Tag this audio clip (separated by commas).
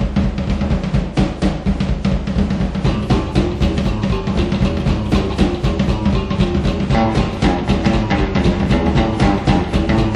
Percussion, Bass drum, Rimshot, Drum